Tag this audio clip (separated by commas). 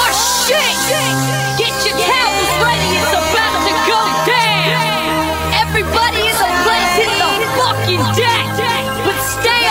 Music